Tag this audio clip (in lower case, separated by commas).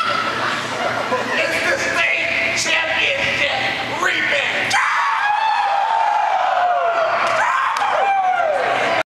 speech